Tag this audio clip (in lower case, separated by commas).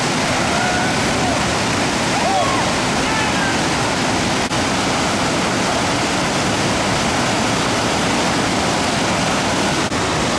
waterfall, waterfall burbling